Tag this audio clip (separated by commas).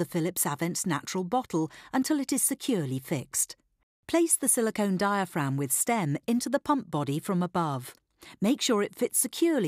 Speech